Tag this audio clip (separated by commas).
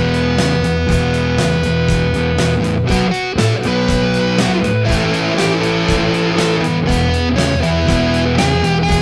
Music